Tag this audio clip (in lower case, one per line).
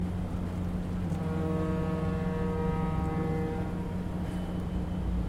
vehicle
water vehicle
engine